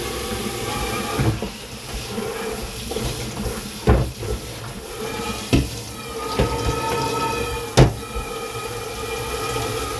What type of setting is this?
kitchen